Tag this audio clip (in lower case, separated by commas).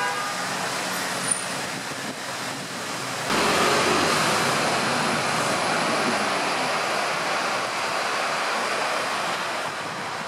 bus, vehicle